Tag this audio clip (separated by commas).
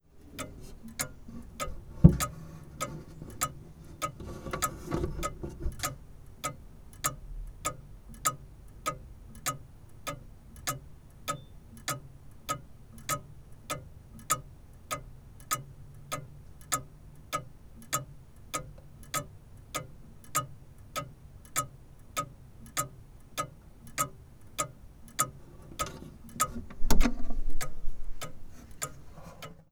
Clock, Mechanisms